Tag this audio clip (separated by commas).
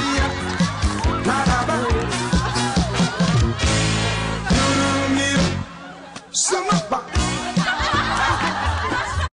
Speech, Music